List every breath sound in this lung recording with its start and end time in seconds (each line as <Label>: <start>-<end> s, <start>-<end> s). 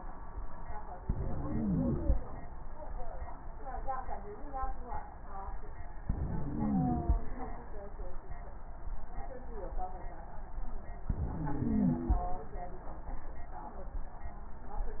Inhalation: 1.00-2.14 s, 6.00-7.14 s, 11.10-12.23 s
Wheeze: 1.00-2.14 s, 6.00-7.14 s, 11.10-12.23 s